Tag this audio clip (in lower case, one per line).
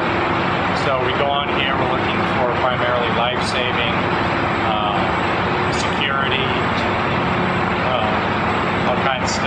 speech